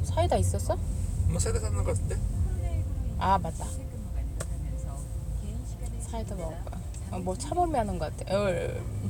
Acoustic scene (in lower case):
car